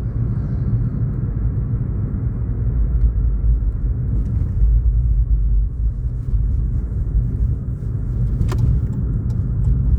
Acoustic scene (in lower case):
car